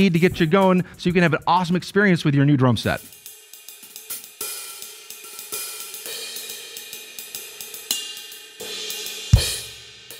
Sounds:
Drum kit, Music, Musical instrument, Speech

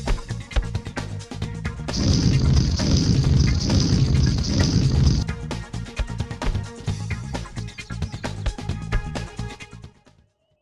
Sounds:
Music

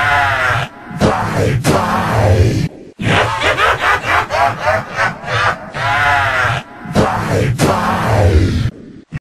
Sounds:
Sound effect

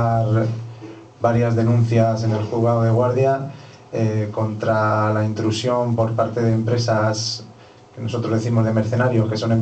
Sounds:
Speech

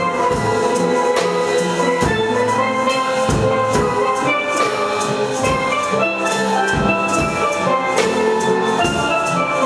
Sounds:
Music, Steelpan, Drum

